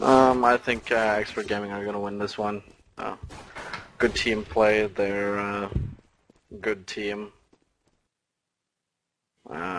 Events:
0.0s-1.5s: surface contact
0.0s-2.6s: man speaking
0.0s-9.7s: background noise
0.0s-9.7s: video game sound
2.6s-2.9s: generic impact sounds
2.9s-3.2s: human voice
3.2s-3.4s: generic impact sounds
3.5s-3.7s: generic impact sounds
3.7s-3.8s: tick
4.0s-5.7s: man speaking
5.7s-6.0s: generic impact sounds
5.9s-6.1s: walk
6.3s-6.4s: walk
6.5s-7.4s: man speaking
7.5s-7.6s: walk
7.8s-8.0s: walk
9.4s-9.7s: human voice

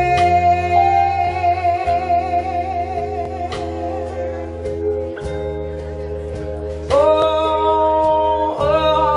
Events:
0.0s-4.6s: female singing
0.0s-9.1s: music
6.9s-9.1s: female singing

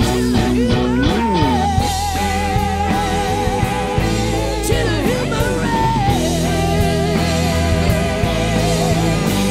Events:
0.0s-9.5s: female singing
0.0s-9.5s: music

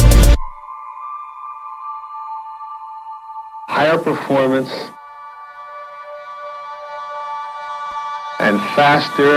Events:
0.0s-9.3s: music
3.7s-5.0s: male speech
8.4s-9.3s: male speech

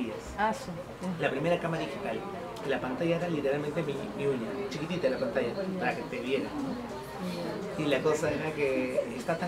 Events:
0.0s-9.4s: conversation
0.0s-9.4s: hubbub
0.0s-9.4s: mechanisms
0.4s-0.7s: woman speaking

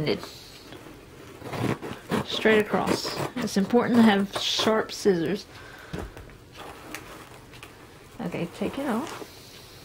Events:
0.0s-0.1s: female speech
0.0s-9.8s: background noise
0.1s-0.7s: breathing
1.4s-1.9s: scissors
2.0s-2.5s: scissors
2.2s-3.1s: female speech
2.7s-3.7s: scissors
3.3s-4.2s: female speech
3.9s-4.1s: scissors
4.3s-4.6s: scissors
4.3s-5.4s: female speech
5.5s-6.4s: breathing
5.9s-6.0s: tap
6.5s-7.3s: breathing
6.8s-7.0s: tick
7.5s-7.6s: tick
8.2s-9.2s: female speech

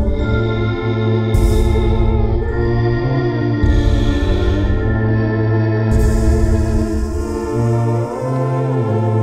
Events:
0.0s-9.2s: music

